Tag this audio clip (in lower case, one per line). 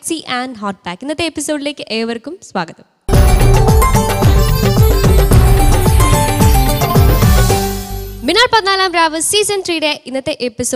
music
speech